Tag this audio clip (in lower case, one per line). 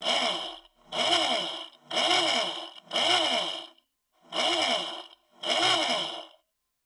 tools